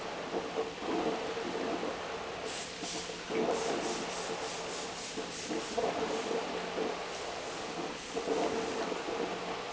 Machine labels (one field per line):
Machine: pump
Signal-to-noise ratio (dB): 0 dB